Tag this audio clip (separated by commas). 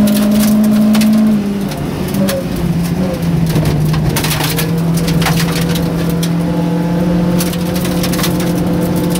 Vehicle, Motor vehicle (road), Car